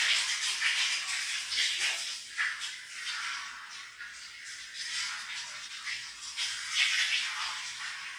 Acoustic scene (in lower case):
restroom